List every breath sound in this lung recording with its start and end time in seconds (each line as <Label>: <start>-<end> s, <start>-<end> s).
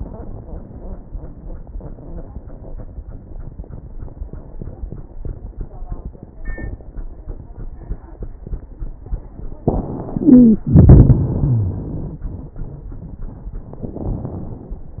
Wheeze: 10.21-10.63 s, 11.35-11.78 s